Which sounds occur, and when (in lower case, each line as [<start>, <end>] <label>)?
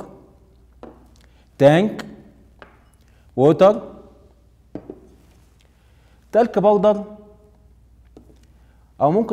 [0.01, 9.32] background noise
[0.66, 0.98] generic impact sounds
[1.53, 2.31] male speech
[2.48, 2.67] generic impact sounds
[3.30, 4.23] male speech
[4.57, 5.46] generic impact sounds
[6.26, 7.42] male speech
[8.01, 8.34] generic impact sounds